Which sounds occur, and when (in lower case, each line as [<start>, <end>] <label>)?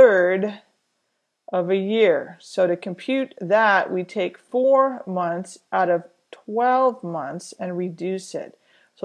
[0.00, 0.79] woman speaking
[0.00, 9.04] mechanisms
[1.51, 6.15] woman speaking
[6.39, 8.59] woman speaking
[8.63, 9.04] breathing